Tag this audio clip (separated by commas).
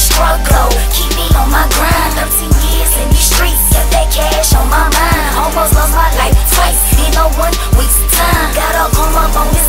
Music